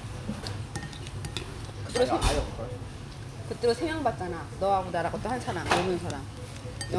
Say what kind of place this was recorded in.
restaurant